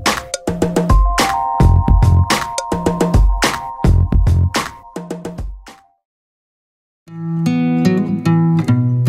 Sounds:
music
outside, rural or natural

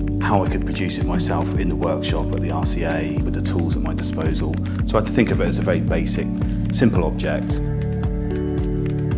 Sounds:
music
speech

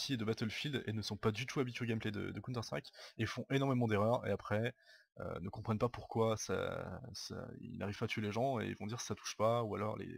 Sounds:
speech

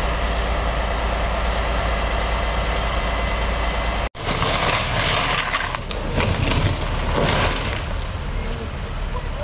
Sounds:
speech

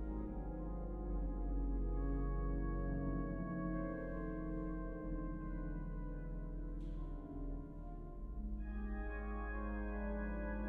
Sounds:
piano
music
musical instrument
keyboard (musical)

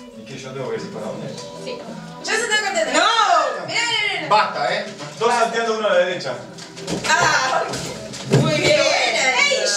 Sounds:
music
speech

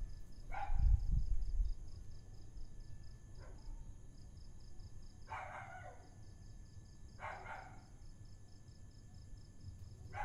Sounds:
dog barking

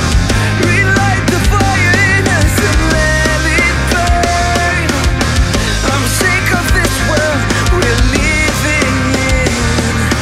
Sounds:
music

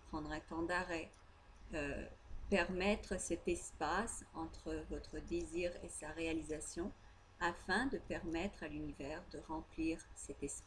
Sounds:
speech

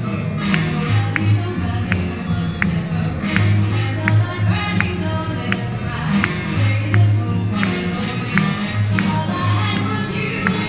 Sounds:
music of latin america

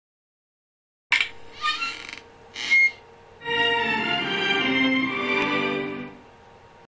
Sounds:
television

